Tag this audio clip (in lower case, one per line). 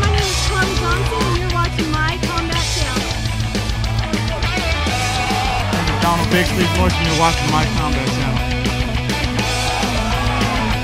speech
music